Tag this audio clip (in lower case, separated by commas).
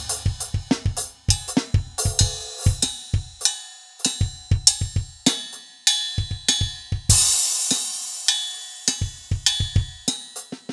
drum, drum kit, musical instrument, music